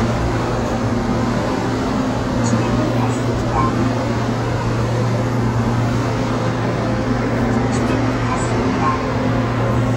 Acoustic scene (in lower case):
subway train